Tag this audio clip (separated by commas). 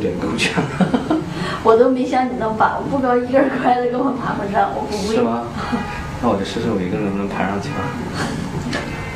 Speech